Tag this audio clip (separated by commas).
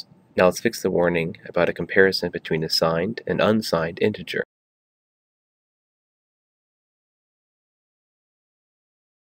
Speech